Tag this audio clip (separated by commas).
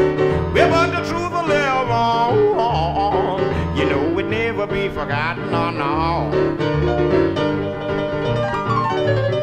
Music